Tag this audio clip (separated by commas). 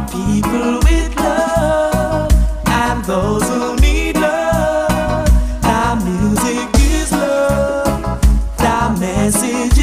Music, Soul music